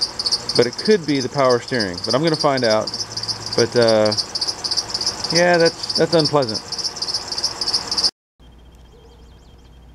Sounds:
Cricket, Insect

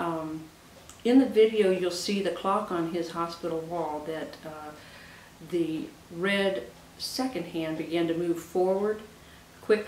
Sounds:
Speech

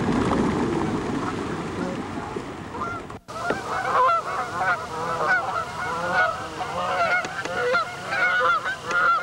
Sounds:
goose honking

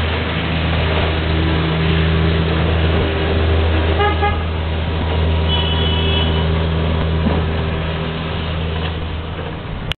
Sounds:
Vehicle

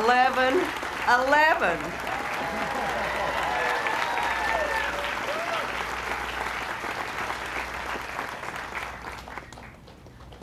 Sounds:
Narration, Speech, woman speaking

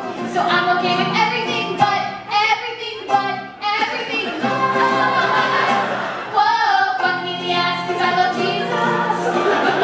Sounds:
Singing, Music

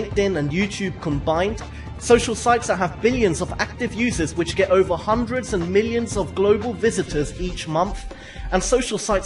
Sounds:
Music, Speech

